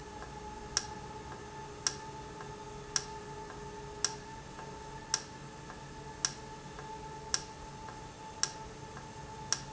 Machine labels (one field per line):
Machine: valve